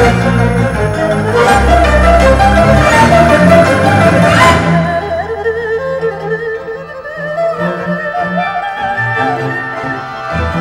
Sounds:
playing erhu

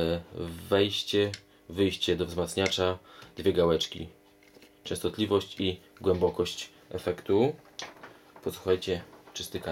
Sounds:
speech

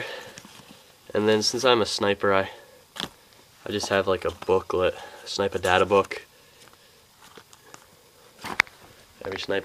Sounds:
inside a small room, speech

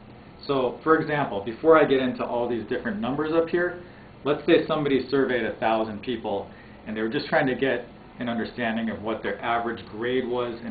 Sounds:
speech

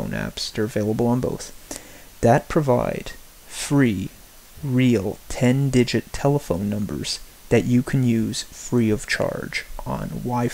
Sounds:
speech

